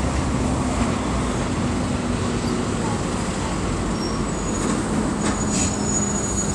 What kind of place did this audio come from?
street